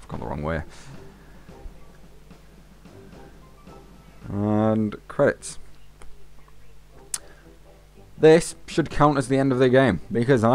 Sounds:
Music, Speech

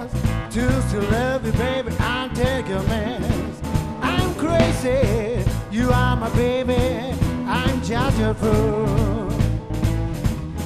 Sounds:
Music

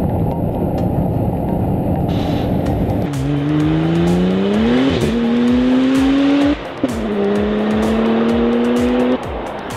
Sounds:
Music

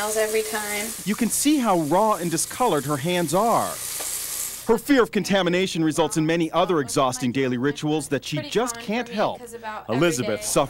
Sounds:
inside a small room, Speech

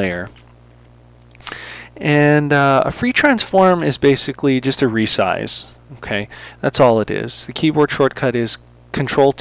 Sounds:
Speech

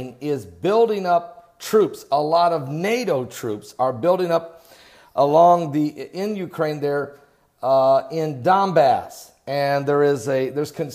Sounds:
Speech

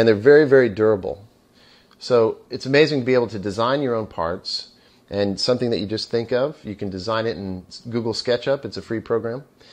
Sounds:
Speech

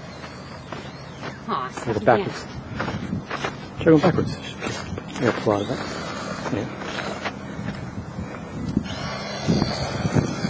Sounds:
Speech

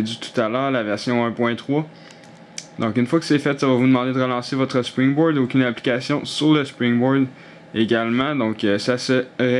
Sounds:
Speech

